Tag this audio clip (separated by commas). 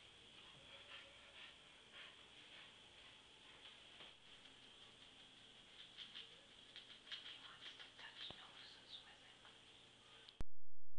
Speech